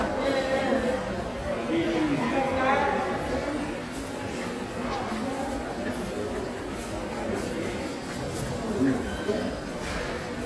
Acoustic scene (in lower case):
subway station